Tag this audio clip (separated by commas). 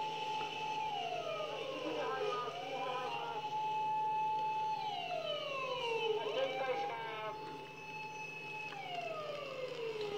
police car (siren)